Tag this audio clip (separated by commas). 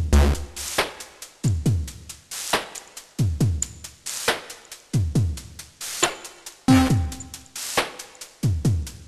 Electronic music, Music, Dubstep